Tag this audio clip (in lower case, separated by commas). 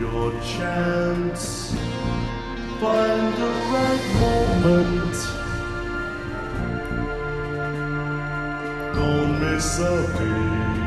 music, pop music